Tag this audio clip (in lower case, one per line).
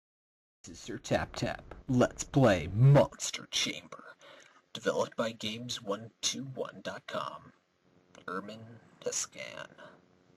speech
narration